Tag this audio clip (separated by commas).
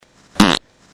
Fart